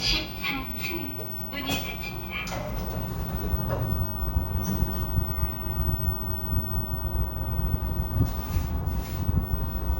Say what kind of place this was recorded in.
elevator